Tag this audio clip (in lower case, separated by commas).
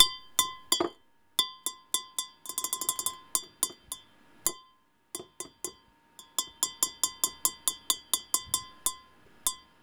tap, glass